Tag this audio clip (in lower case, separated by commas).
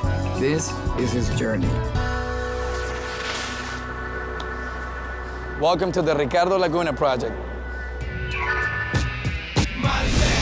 music, speech